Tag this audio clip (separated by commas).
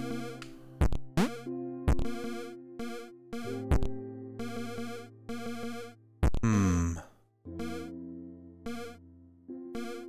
Music, Synthesizer